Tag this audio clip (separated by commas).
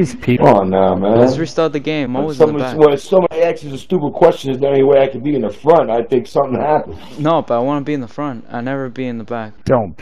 Speech